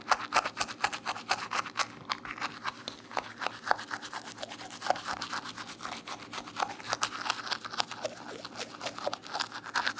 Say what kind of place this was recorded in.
restroom